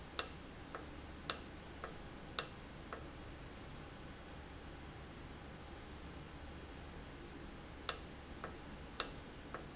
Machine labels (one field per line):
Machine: valve